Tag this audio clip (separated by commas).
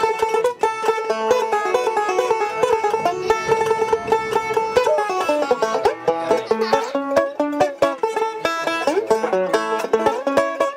Musical instrument, Banjo, Country, playing banjo, Plucked string instrument, Music